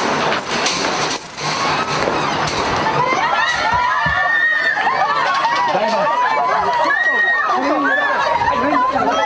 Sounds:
outside, urban or man-made, speech

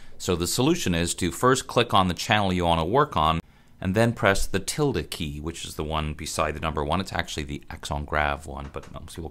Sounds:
speech

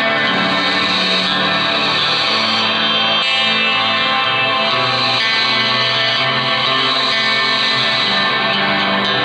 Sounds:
music, musical instrument, guitar

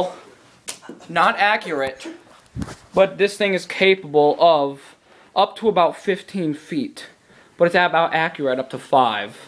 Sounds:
speech, inside a small room

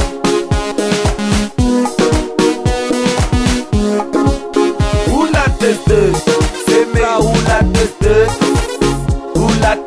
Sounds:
music

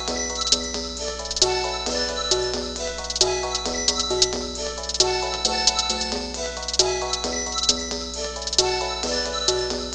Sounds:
music, exciting music

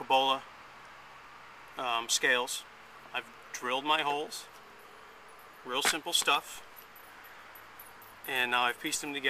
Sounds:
speech

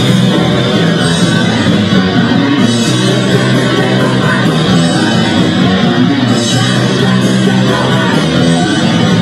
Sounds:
music

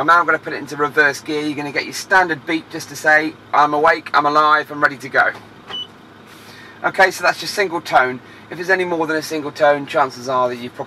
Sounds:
reversing beeps

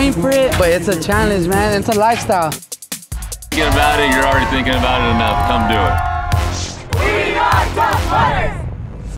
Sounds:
music, speech

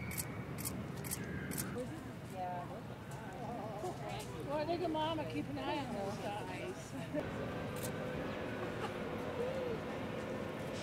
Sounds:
speech

